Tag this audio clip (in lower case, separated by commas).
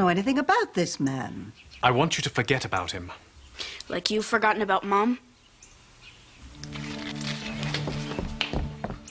music, speech, inside a small room